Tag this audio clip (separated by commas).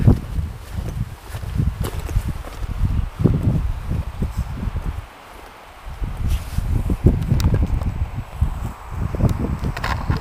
Walk